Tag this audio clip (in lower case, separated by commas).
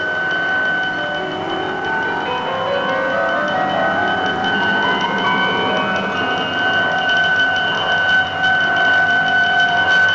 glockenspiel, marimba, mallet percussion